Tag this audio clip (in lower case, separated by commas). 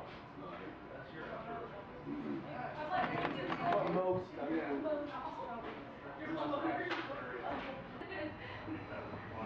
speech